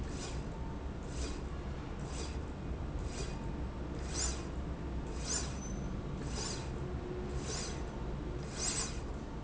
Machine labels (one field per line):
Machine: slide rail